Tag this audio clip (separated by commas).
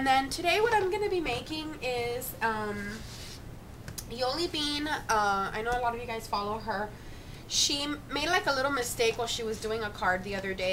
Speech